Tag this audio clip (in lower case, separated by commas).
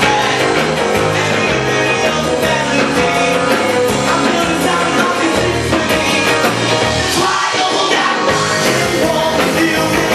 heavy metal, rock and roll, music